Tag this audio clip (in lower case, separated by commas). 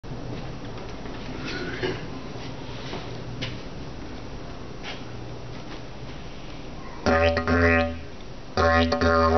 music, musical instrument, didgeridoo